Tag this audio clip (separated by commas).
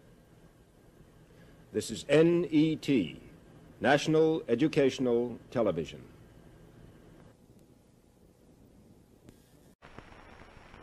Speech